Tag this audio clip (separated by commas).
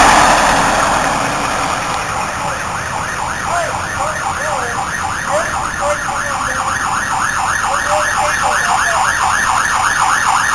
Speech, Vehicle